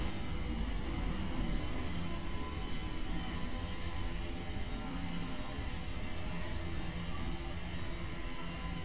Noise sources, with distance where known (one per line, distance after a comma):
unidentified powered saw, far